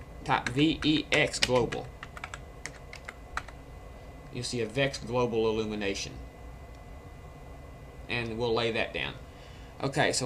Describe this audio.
A man is typing on the keyboard and talking